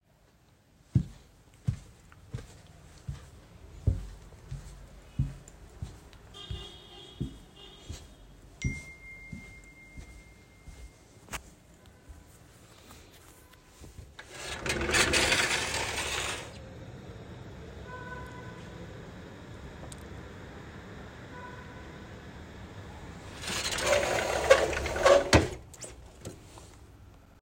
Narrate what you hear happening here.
I walked down the hallway to the living room, and I received a notification while walking. I opened the window to look for something, then closed it again.